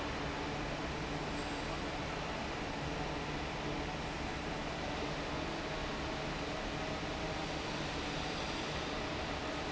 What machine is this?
fan